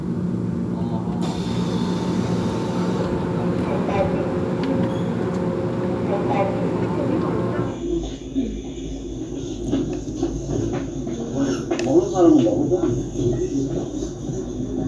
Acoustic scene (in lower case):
subway train